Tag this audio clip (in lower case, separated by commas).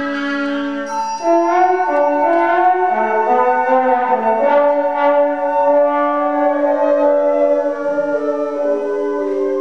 musical instrument, music, inside a large room or hall, orchestra